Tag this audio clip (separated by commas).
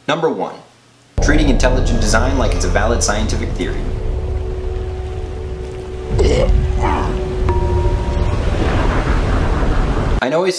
Music, outside, rural or natural, Speech